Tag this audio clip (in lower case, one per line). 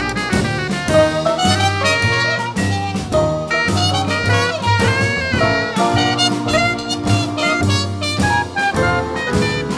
swing music
music
musical instrument